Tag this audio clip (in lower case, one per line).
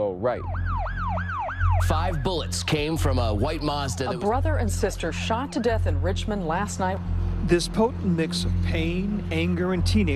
police car (siren)